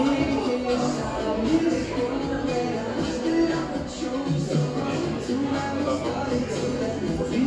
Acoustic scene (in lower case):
cafe